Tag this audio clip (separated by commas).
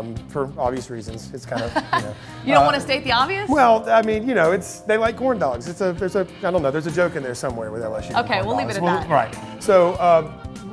Speech, Music